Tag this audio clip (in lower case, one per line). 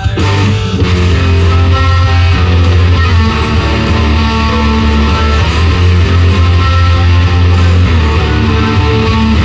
musical instrument
music
guitar